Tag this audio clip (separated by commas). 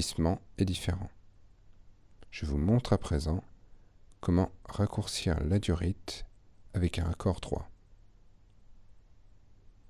Speech